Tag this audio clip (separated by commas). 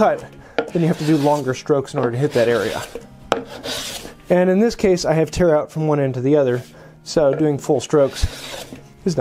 planing timber